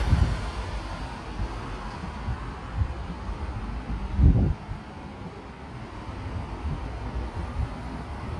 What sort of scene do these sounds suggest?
street